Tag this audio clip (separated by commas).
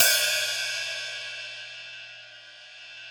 Hi-hat, Cymbal, Musical instrument, Music, Percussion